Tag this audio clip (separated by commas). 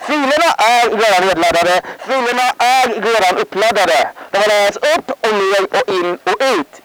Human voice, Speech